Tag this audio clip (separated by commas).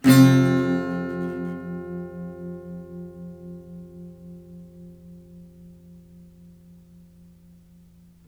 Acoustic guitar, Musical instrument, Music, Plucked string instrument, Guitar, Strum